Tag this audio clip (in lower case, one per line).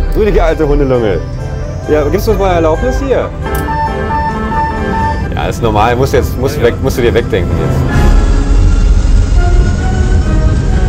airplane